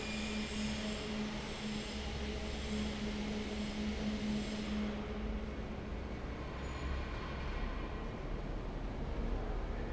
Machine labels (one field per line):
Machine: fan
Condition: normal